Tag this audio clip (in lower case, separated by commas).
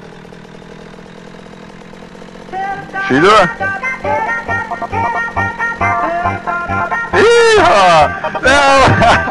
disco, music, speech